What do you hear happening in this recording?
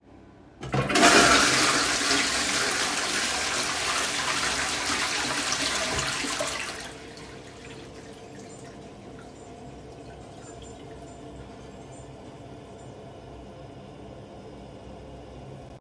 I flushed the toilet and then turned on the water for a moment before turning it off again.